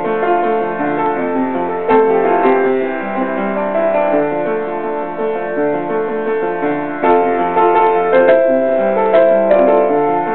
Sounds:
music

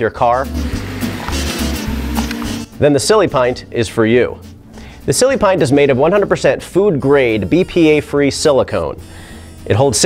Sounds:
speech
music

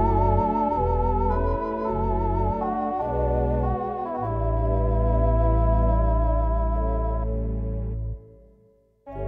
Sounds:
music

